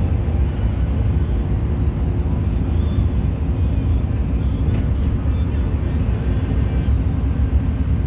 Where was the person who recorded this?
on a bus